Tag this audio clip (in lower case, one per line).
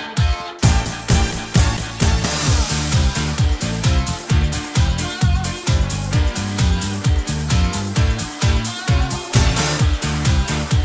music